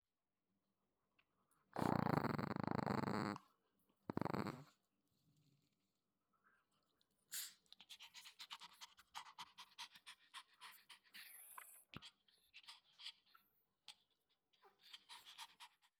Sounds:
dog, pets, growling, animal

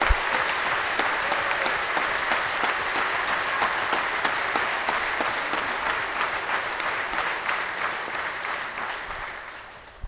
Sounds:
human group actions, applause

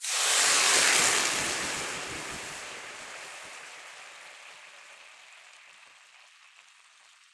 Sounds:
hiss

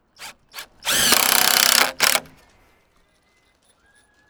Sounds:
tools, power tool, drill

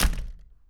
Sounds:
door, slam, home sounds

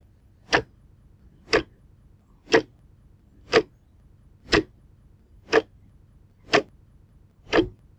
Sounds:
mechanisms, clock, tick-tock

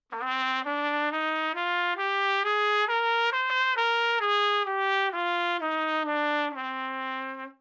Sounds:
music, trumpet, musical instrument, brass instrument

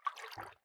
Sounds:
liquid, splatter

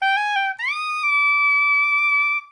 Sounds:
music, musical instrument, woodwind instrument

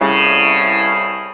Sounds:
musical instrument, plucked string instrument, music

